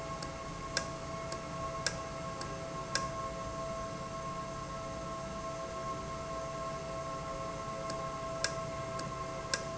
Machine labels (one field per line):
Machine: valve